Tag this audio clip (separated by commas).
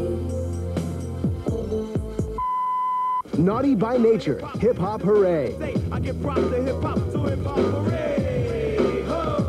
Speech, Music